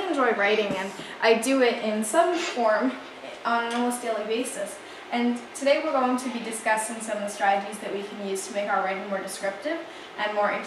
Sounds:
speech

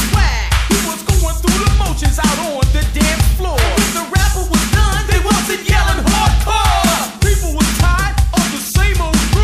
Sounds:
music

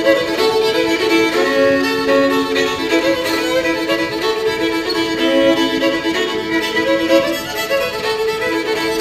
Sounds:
violin
musical instrument
music

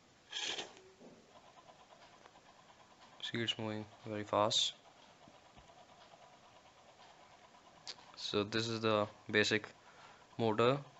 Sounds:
inside a small room
speech

